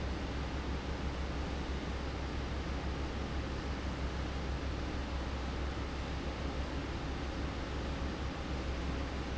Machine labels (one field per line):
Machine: fan